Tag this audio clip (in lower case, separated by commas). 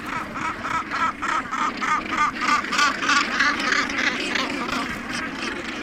bird, animal, gull, wild animals